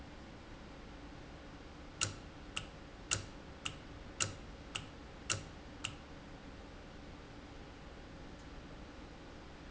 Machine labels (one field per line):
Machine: valve